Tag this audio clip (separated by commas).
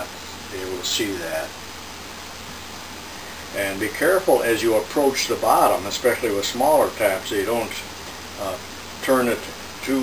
Speech